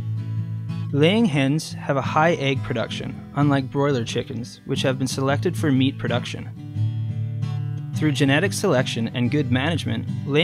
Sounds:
Music, Speech

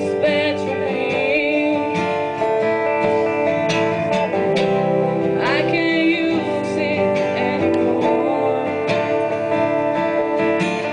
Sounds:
Music

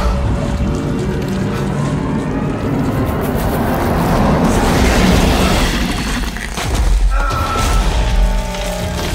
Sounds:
Music

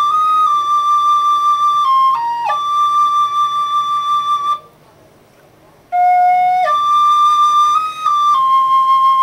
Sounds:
Flute

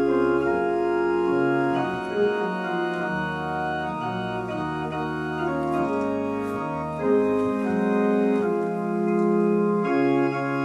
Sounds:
playing electronic organ, Organ, Electronic organ

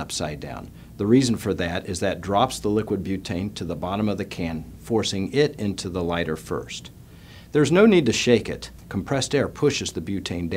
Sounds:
Speech

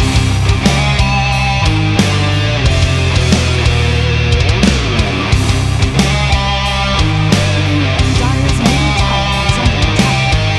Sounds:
Heavy metal

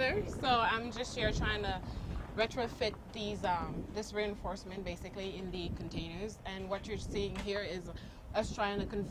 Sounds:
Speech

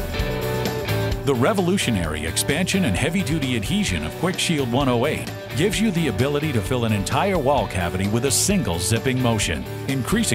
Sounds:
Music, Speech

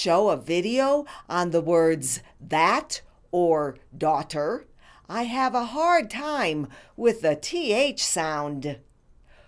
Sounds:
Female speech, Narration, Speech

